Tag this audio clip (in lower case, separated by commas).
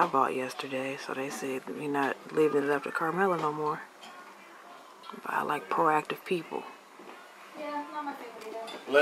speech